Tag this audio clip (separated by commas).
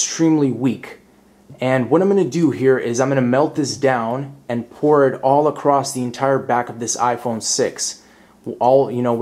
Speech